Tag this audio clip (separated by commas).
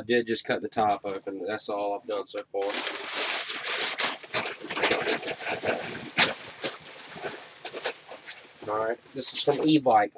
Speech